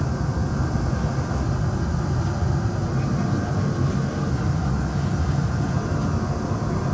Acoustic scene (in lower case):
subway train